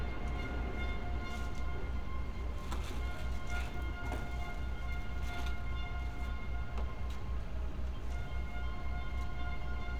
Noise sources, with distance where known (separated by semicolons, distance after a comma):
music from a fixed source